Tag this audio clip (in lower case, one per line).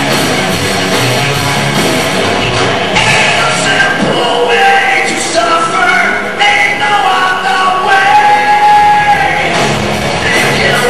music
speech